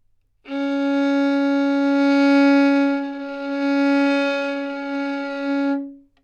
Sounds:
Bowed string instrument, Musical instrument, Music

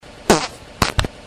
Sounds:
Fart

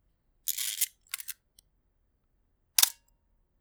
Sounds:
Mechanisms, Camera

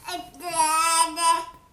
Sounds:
Human voice, Speech

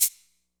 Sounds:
Percussion, Musical instrument, Rattle (instrument), Music

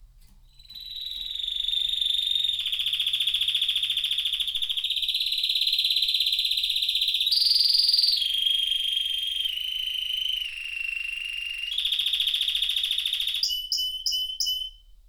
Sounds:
Animal, Bird, Wild animals, Bird vocalization

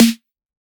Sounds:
Drum, Musical instrument, Percussion, Music, Snare drum

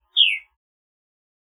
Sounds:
Animal, Wild animals, Bird

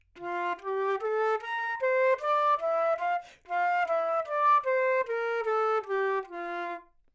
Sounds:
Musical instrument, Wind instrument, Music

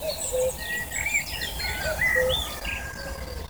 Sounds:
Bird, Wild animals, Animal

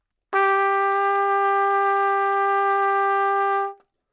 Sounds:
Music, Brass instrument, Musical instrument, Trumpet

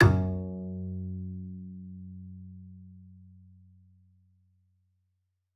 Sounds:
Bowed string instrument, Musical instrument, Music

